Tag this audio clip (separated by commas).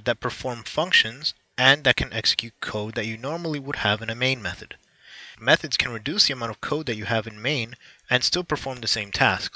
Speech